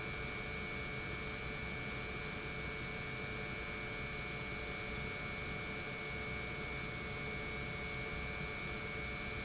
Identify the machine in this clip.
pump